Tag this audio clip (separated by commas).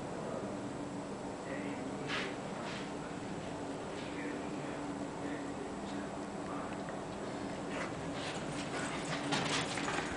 Speech